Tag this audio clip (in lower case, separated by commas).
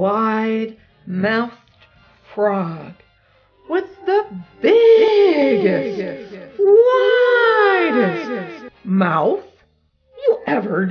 music, speech